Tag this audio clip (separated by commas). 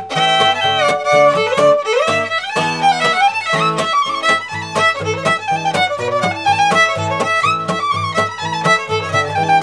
fiddle, Musical instrument, Music